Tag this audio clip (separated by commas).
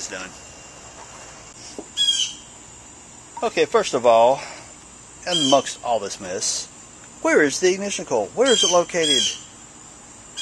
Caw, Speech, outside, urban or man-made